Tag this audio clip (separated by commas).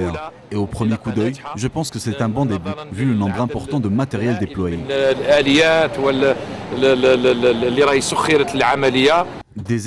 Speech